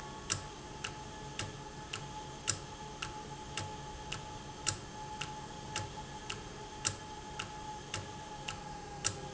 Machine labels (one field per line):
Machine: valve